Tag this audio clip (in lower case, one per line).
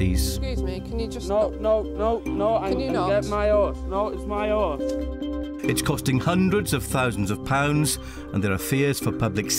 music
speech